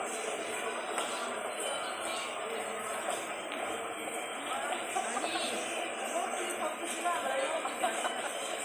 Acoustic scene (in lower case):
subway station